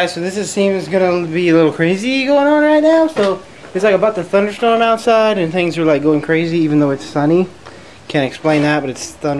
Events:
[0.00, 3.38] man speaking
[0.00, 9.35] mechanisms
[3.09, 3.34] generic impact sounds
[3.57, 3.76] generic impact sounds
[3.70, 7.54] man speaking
[4.42, 4.64] generic impact sounds
[7.63, 8.02] breathing
[8.10, 9.07] man speaking
[9.20, 9.35] man speaking

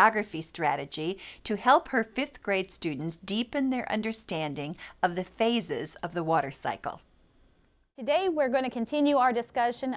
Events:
[0.00, 1.13] woman speaking
[0.00, 9.95] background noise
[1.14, 1.35] breathing
[1.42, 3.12] woman speaking
[3.25, 4.71] woman speaking
[4.74, 4.94] breathing
[5.00, 6.95] woman speaking
[7.59, 7.66] clicking
[7.79, 7.86] clicking
[7.93, 9.95] woman speaking

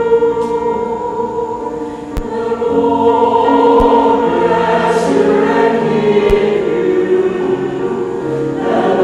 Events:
[0.00, 1.93] choir
[0.00, 9.03] music
[1.76, 2.04] breathing
[2.20, 7.96] choir
[8.16, 8.49] breathing

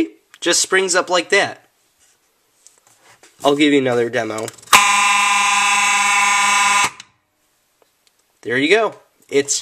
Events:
[0.32, 1.51] man speaking
[3.28, 4.46] man speaking
[4.63, 6.92] alarm
[8.36, 9.06] man speaking
[9.23, 9.61] man speaking

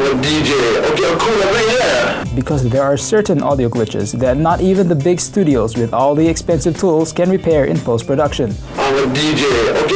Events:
[0.00, 8.51] male speech
[0.00, 9.95] music
[8.76, 9.95] male speech

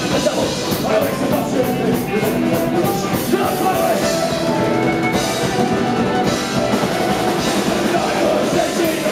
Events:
[0.00, 3.88] male singing
[0.00, 9.11] music
[7.91, 9.11] male singing

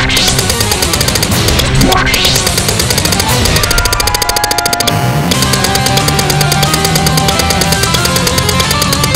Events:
[0.00, 0.36] sound effect
[0.00, 9.15] music
[0.00, 9.15] video game sound
[1.74, 2.69] sound effect
[3.58, 4.83] sound effect

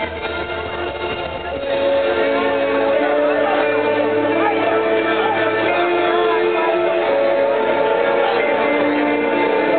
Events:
[0.00, 9.75] music
[2.01, 8.48] speech noise

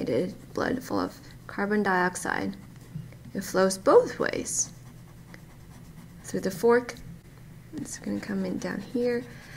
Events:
[0.00, 9.55] background noise
[0.01, 0.32] female speech
[0.56, 1.10] female speech
[1.51, 2.55] female speech
[3.35, 4.76] female speech
[6.33, 6.92] female speech
[7.75, 9.25] female speech

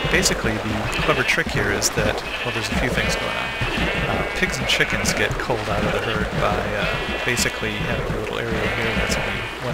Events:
[0.00, 9.73] video game sound
[0.08, 2.14] man speaking
[0.74, 1.25] bleat
[2.18, 4.60] bleat
[2.57, 3.63] man speaking
[4.16, 6.88] man speaking
[6.66, 8.03] bleat
[7.20, 9.73] man speaking
[8.45, 9.67] bleat

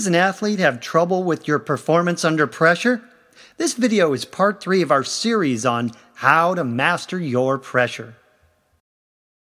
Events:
[0.00, 2.96] male speech
[0.00, 8.79] background noise
[1.33, 1.42] clicking
[2.98, 3.30] reverberation
[3.29, 3.51] breathing
[3.57, 5.88] male speech
[5.81, 6.13] reverberation
[5.86, 5.96] clicking
[6.11, 8.02] male speech
[8.01, 8.51] reverberation

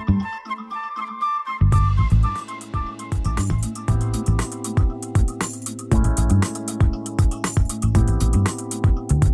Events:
[0.00, 9.33] music

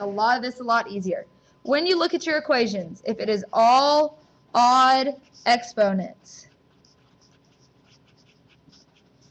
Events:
[0.00, 1.20] female speech
[0.00, 9.30] background noise
[1.37, 1.51] writing
[1.60, 2.76] writing
[1.64, 4.05] female speech
[2.88, 4.12] writing
[4.49, 5.13] female speech
[4.51, 6.06] writing
[5.32, 6.11] female speech
[6.20, 6.54] writing
[6.72, 9.30] writing

